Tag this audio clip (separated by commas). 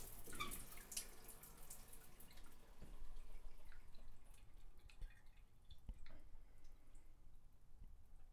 Bathtub (filling or washing), Domestic sounds